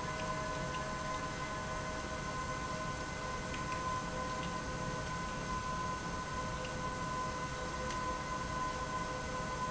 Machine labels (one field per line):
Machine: pump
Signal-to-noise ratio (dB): -6 dB